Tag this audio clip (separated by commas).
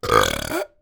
Burping